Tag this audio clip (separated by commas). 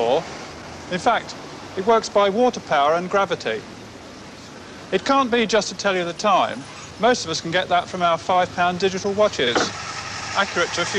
Speech